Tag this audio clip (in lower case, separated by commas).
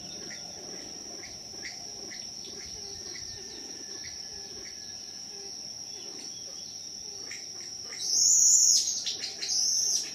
pheasant crowing